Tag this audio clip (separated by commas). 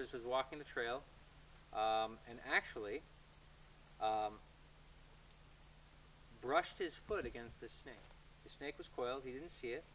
Speech, outside, rural or natural